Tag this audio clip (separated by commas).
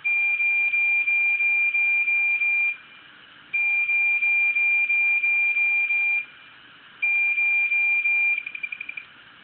Siren